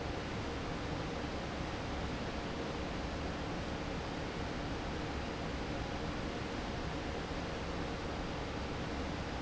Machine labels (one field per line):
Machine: fan